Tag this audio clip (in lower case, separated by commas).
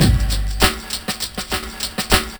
drum kit, musical instrument, music, percussion